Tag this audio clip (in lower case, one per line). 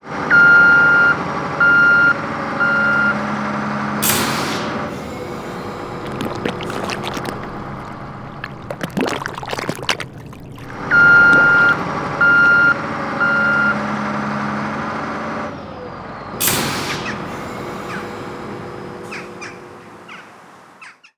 alarm